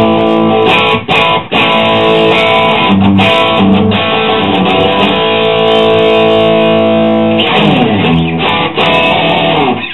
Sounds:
Music

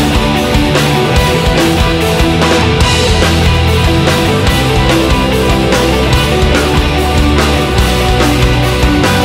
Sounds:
Music

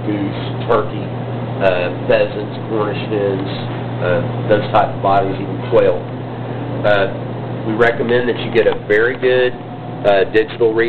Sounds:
Speech

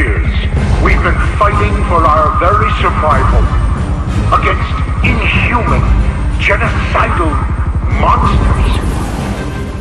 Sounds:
Speech, Male speech, Music

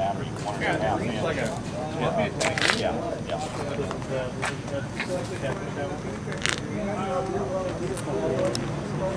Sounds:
Speech

